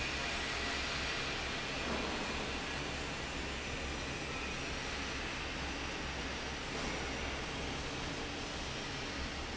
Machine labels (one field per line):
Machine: fan